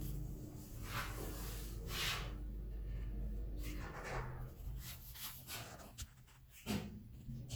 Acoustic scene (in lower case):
elevator